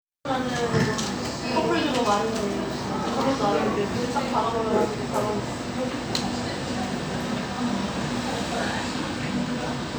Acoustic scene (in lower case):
cafe